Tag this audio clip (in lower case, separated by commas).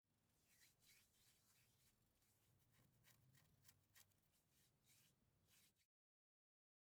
hands